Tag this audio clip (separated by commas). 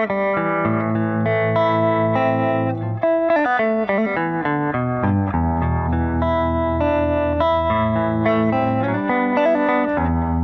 Music